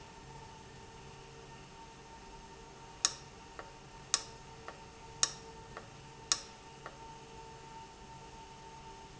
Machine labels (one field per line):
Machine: valve